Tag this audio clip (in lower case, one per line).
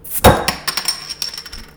glass
chink